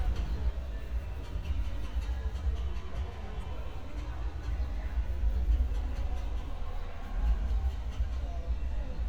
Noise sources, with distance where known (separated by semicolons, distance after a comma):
person or small group talking